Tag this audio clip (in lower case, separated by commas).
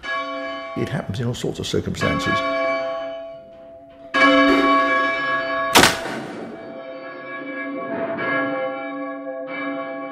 bell, speech